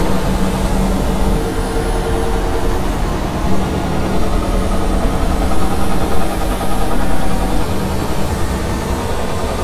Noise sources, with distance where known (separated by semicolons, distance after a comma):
unidentified impact machinery, near